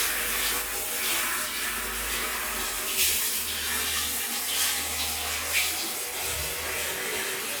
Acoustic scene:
restroom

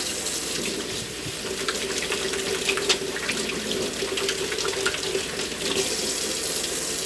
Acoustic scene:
kitchen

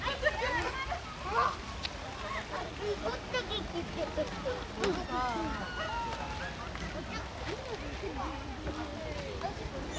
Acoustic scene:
park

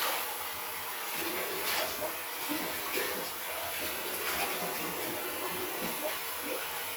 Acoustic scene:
restroom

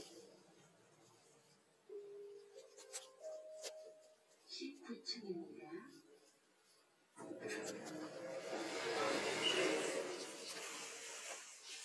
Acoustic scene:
elevator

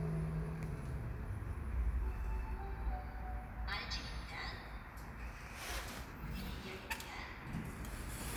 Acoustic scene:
elevator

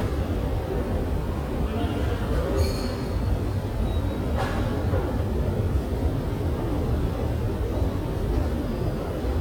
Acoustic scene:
subway station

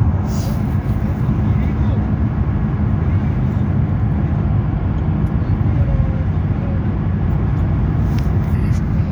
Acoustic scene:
car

